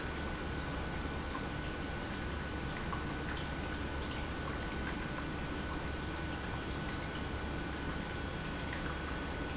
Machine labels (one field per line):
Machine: pump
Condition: normal